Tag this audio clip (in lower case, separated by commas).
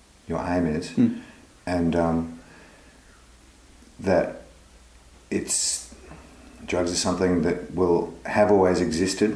speech